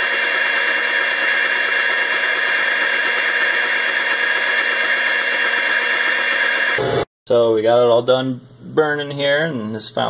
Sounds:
Speech, inside a small room

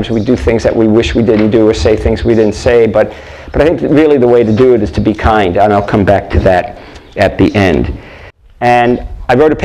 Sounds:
Animal, Speech

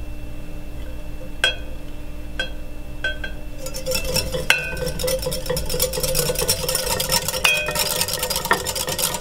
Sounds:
inside a small room

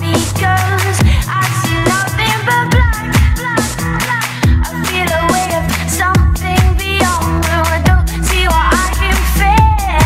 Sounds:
Music, Dance music

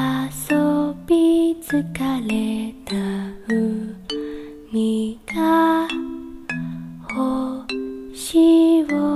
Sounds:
Female singing, Music

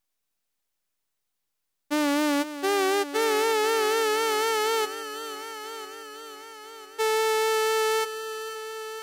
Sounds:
Music

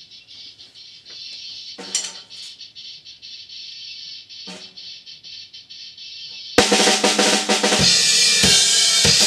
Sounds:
Snare drum, Drum kit, Drum roll, Bass drum, Drum, Percussion, Rimshot

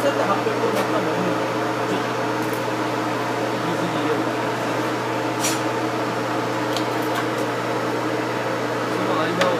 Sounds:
Speech

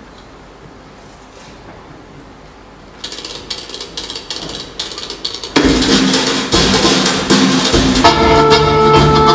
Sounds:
inside a large room or hall, Accordion, Music

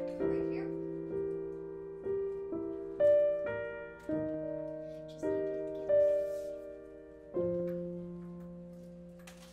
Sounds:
playing piano

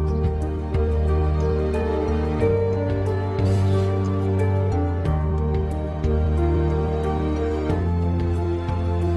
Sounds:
Music

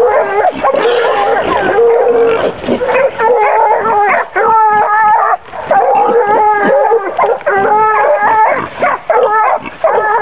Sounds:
dog baying

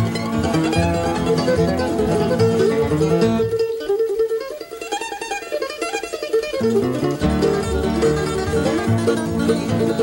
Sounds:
Plucked string instrument, Mandolin, Ukulele, Musical instrument, Music, Guitar

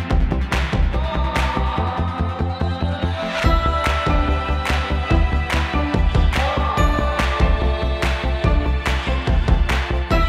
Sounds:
Music

